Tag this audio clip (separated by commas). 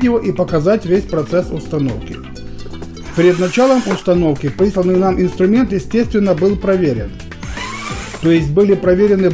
Music, Speech